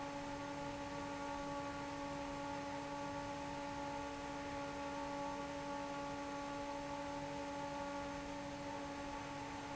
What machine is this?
fan